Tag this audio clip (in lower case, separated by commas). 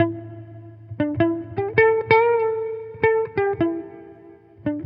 music, musical instrument, guitar, plucked string instrument, electric guitar